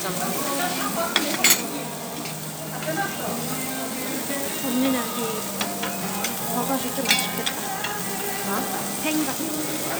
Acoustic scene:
restaurant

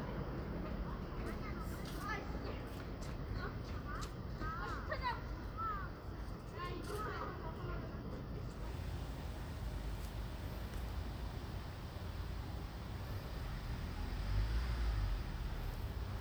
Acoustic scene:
residential area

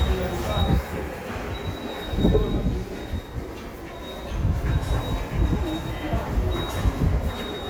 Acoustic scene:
subway station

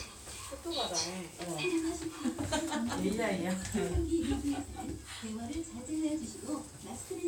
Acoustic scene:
elevator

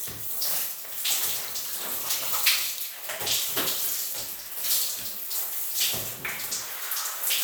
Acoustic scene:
restroom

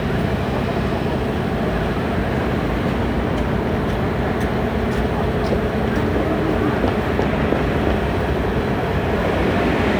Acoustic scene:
street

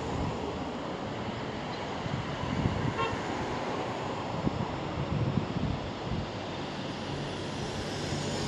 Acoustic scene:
street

